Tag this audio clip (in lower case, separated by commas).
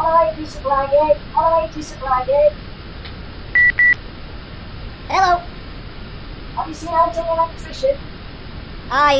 speech